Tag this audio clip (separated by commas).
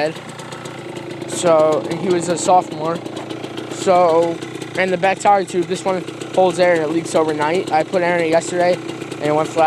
Speech